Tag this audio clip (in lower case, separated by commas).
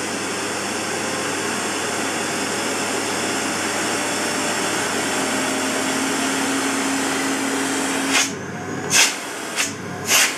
vacuum cleaner